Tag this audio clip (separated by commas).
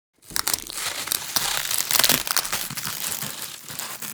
Crushing